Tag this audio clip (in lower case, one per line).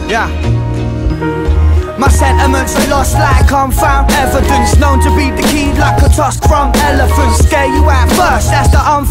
music